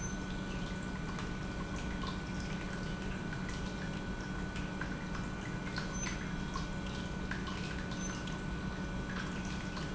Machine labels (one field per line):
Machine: pump